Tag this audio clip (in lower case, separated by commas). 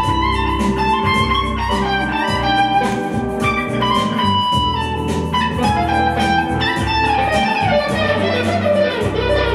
electric guitar, musical instrument, plucked string instrument, music, guitar